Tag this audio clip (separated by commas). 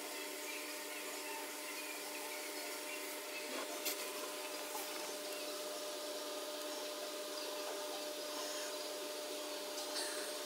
outside, rural or natural